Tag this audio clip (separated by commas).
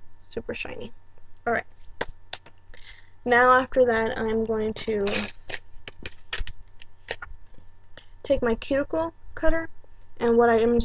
inside a small room, Speech